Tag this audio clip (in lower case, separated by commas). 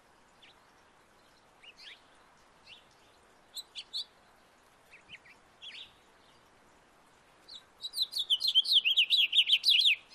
tweeting, bird, chirp